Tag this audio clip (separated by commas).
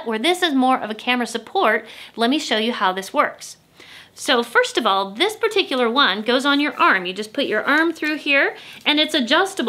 Speech